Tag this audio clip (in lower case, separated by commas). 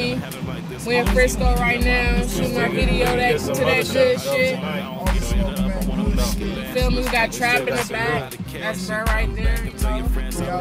music, speech